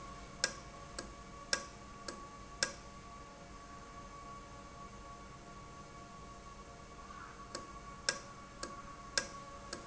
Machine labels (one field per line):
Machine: valve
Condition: normal